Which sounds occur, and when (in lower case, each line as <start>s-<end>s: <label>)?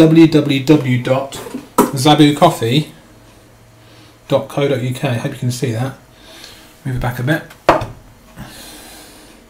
0.0s-1.5s: male speech
0.0s-9.4s: mechanisms
0.7s-0.8s: generic impact sounds
1.3s-2.0s: generic impact sounds
1.9s-2.9s: male speech
4.3s-6.0s: male speech
6.1s-6.7s: breathing
6.4s-6.5s: tick
6.8s-7.5s: male speech
7.5s-8.0s: generic impact sounds